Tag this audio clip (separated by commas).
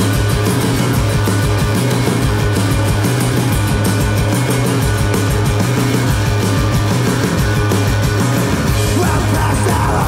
Music, Pop music